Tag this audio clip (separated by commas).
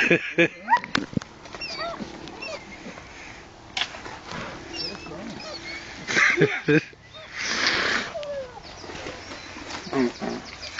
Speech